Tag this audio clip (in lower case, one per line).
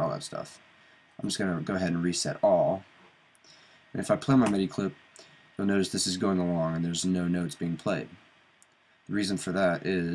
speech